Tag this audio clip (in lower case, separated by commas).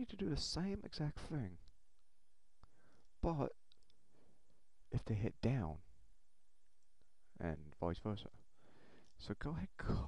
inside a small room, clicking, speech